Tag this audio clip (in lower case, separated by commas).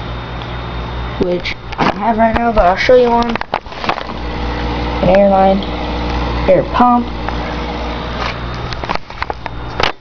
inside a small room, speech